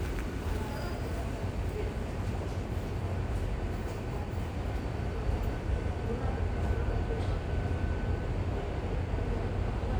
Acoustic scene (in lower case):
subway station